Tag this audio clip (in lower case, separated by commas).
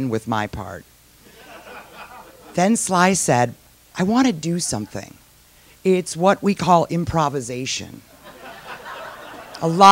speech, laughter